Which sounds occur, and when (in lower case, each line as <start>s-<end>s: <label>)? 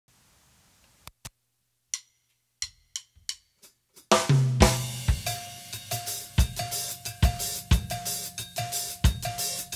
0.1s-1.1s: noise
0.8s-0.8s: tick
1.1s-4.1s: mechanisms
1.2s-1.3s: tick
1.9s-2.4s: music
2.6s-9.7s: music